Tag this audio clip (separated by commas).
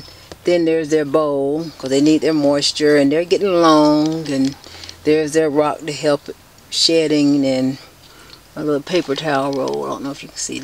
Speech